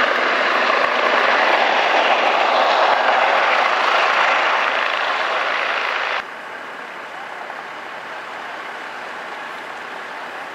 A truck engine is idling in a low frequency